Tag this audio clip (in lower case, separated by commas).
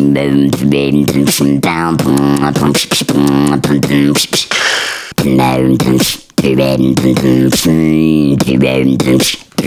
beat boxing